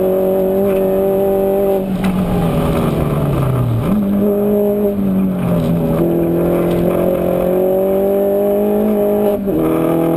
A large car engine accelerates and decelerates